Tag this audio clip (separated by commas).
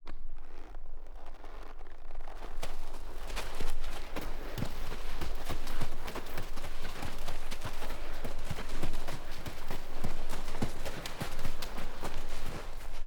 livestock, Animal